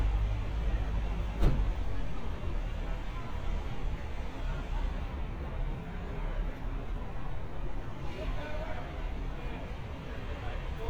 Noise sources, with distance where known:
unidentified human voice, far

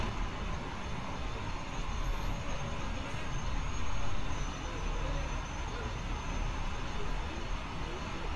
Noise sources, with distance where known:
engine of unclear size, near
person or small group talking

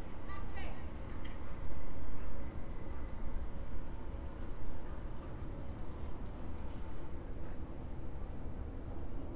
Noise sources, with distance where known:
person or small group shouting, far

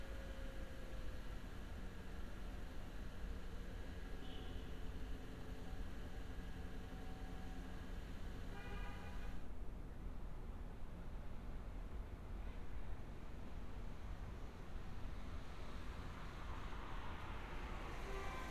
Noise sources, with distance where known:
car horn, far

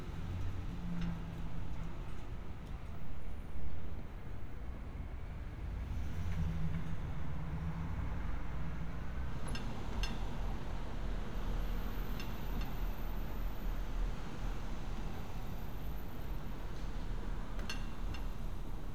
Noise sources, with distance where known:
background noise

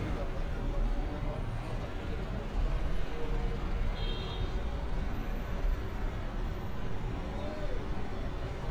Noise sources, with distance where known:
medium-sounding engine
car horn, near
person or small group shouting, far

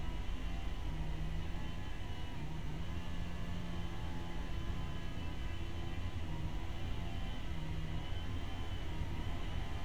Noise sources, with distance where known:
unidentified powered saw, far

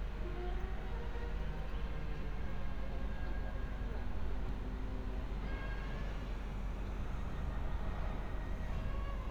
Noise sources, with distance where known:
music from a fixed source, far

